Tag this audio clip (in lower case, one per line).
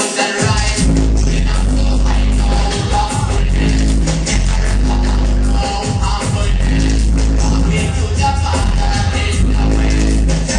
music
rustle